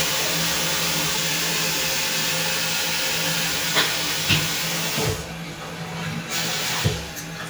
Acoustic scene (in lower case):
restroom